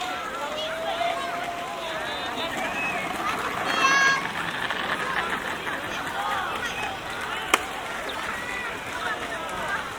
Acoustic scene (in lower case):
park